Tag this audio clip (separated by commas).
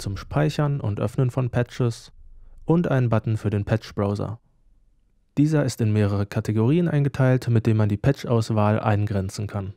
Speech